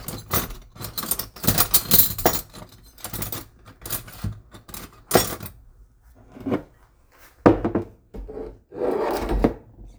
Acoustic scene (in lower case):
kitchen